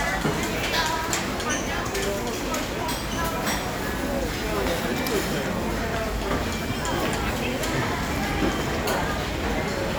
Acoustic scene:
crowded indoor space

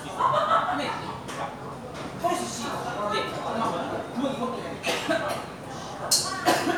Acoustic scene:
crowded indoor space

